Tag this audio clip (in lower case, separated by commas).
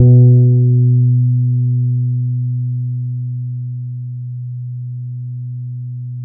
musical instrument, music, bass guitar, plucked string instrument, guitar